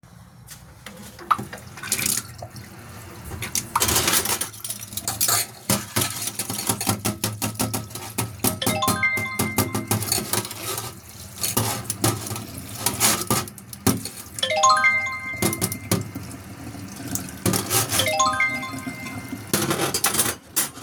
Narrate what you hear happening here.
I wash the dishes in the sink then trigger phone notification